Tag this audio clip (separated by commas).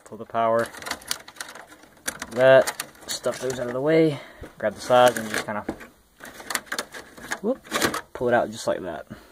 inside a small room, Speech